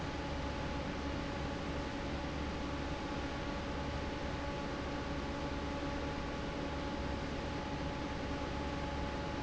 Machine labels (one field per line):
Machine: fan